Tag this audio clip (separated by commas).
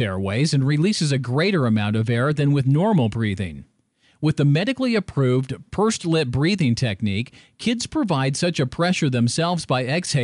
Speech